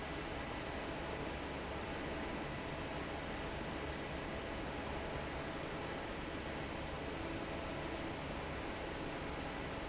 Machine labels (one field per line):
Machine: fan